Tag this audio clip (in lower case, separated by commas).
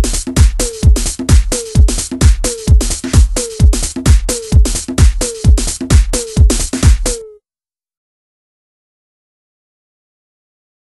electronic music, music